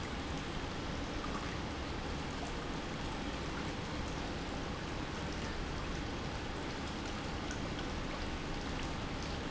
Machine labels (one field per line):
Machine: pump